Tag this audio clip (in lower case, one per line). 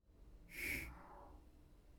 hiss